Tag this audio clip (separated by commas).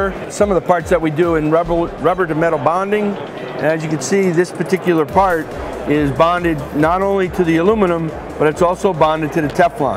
Music, Speech